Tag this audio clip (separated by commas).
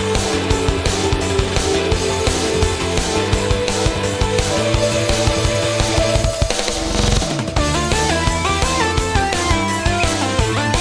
Pop music, Music